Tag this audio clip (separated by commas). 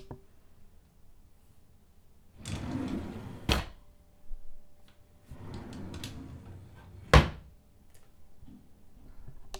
Drawer open or close, Domestic sounds